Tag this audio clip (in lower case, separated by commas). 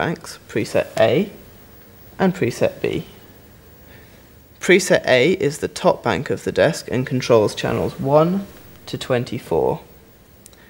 speech